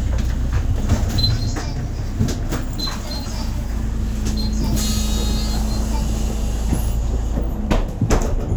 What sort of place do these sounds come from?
bus